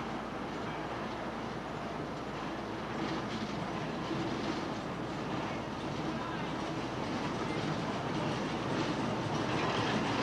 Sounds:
Clickety-clack, Rail transport, Train, Railroad car

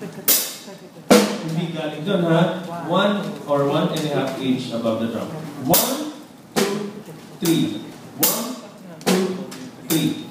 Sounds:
Music, Speech

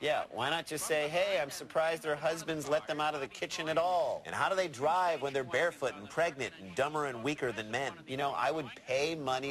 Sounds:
Speech

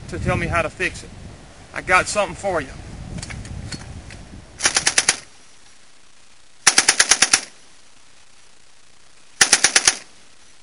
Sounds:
Speech

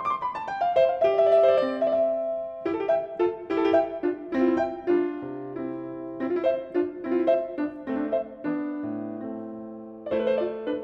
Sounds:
Music, Musical instrument, Keyboard (musical), Piano, Classical music

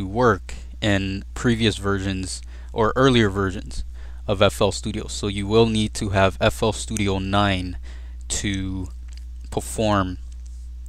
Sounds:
Speech

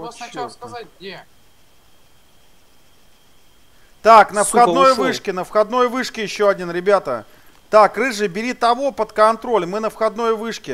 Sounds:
Speech

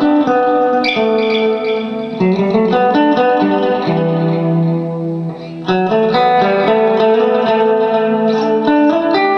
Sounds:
Music

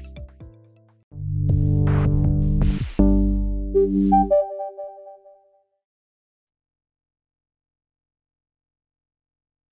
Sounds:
Music

